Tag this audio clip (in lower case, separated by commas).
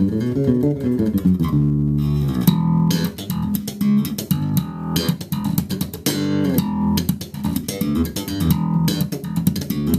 plucked string instrument, musical instrument, guitar, music, bass guitar, electric guitar